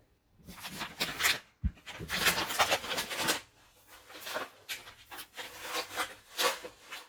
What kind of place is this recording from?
kitchen